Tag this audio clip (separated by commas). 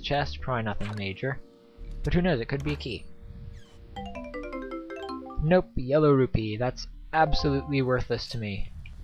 Speech